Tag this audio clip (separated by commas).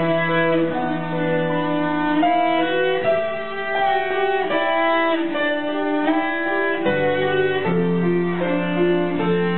Cello, Musical instrument, Music, Violin